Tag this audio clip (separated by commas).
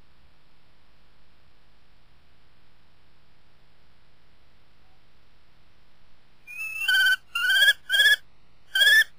Bird